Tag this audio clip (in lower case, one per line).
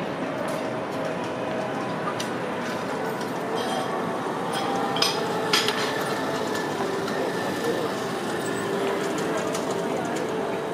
speech